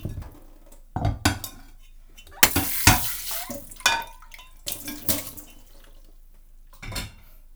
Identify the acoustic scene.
kitchen